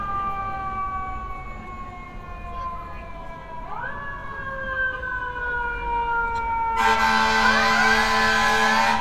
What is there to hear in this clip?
car horn, siren